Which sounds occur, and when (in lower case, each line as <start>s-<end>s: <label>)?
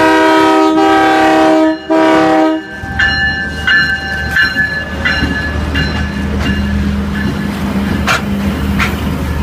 0.0s-2.6s: train horn
0.0s-9.4s: train
0.0s-9.4s: wind
1.6s-8.0s: bell
8.0s-8.3s: clickety-clack
8.8s-9.0s: clickety-clack